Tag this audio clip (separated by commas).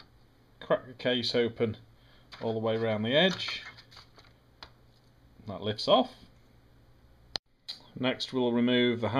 Speech